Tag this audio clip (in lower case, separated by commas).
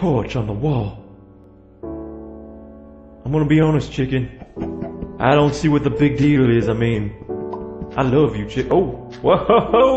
speech, music